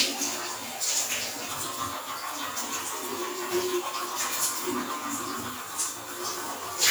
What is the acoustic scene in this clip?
restroom